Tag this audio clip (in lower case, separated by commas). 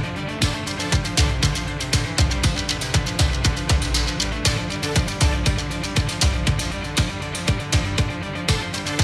music